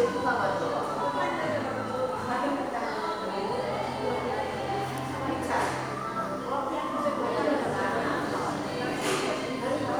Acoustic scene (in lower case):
crowded indoor space